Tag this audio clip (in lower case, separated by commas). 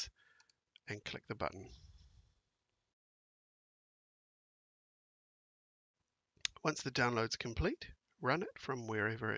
speech